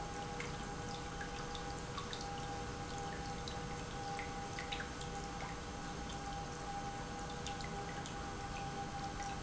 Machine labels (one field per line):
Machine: pump